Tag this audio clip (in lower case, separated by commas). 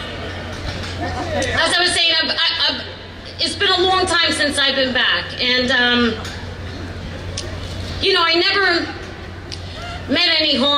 speech